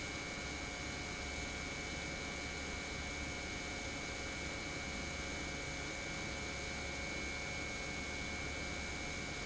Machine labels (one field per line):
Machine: pump